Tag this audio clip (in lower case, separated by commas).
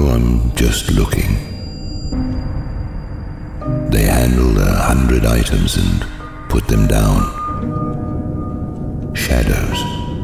speech, music